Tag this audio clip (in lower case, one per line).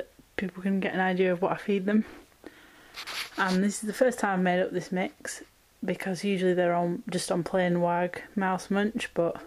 speech